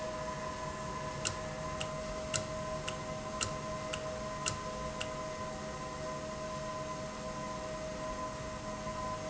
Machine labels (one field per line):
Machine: valve